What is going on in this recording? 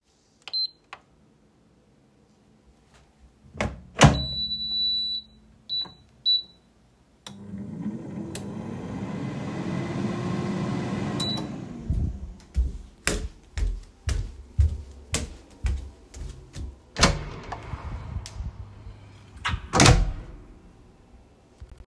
I walked around the living room where the PS5 was turning on and the air fryer was running. I then opened and closed the door.